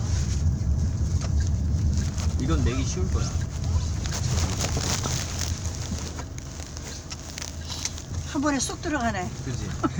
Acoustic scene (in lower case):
car